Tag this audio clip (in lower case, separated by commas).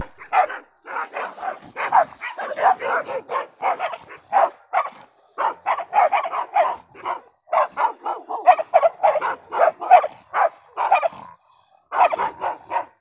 domestic animals, bark, animal, dog